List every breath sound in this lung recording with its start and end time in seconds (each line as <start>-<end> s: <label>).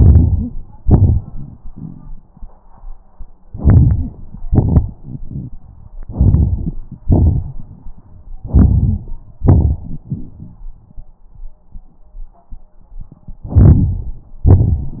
0.00-0.80 s: inhalation
0.81-2.49 s: exhalation
3.51-4.48 s: inhalation
4.50-5.92 s: exhalation
6.00-7.06 s: inhalation
7.08-8.39 s: exhalation
8.42-9.43 s: inhalation
9.43-11.18 s: exhalation
13.30-14.48 s: inhalation